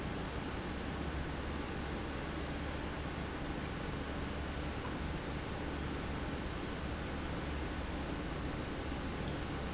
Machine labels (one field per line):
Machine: pump